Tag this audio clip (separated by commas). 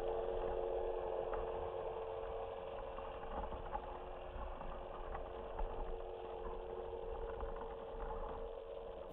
outside, rural or natural